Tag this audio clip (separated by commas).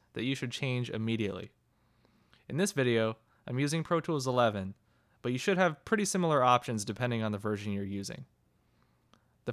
Speech